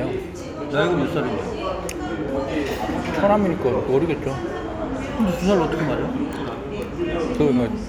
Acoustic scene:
restaurant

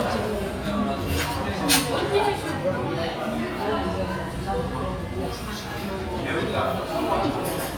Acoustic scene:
restaurant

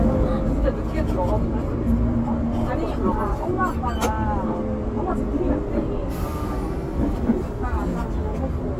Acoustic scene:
bus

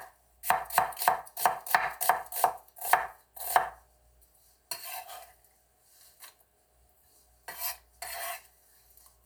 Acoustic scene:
kitchen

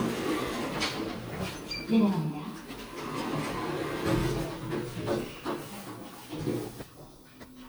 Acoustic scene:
elevator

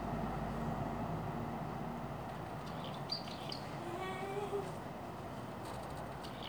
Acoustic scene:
residential area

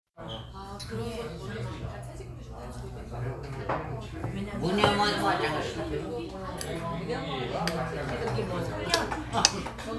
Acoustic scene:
crowded indoor space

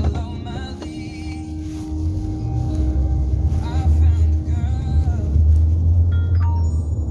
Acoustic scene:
car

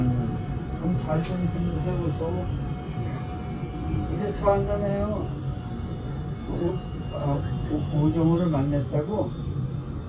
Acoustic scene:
subway train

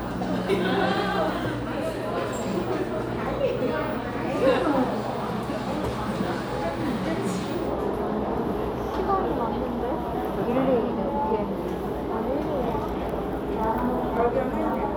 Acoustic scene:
crowded indoor space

